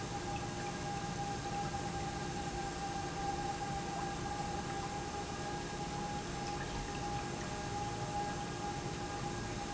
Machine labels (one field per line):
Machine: pump